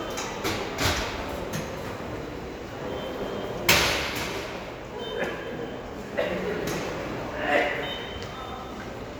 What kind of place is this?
subway station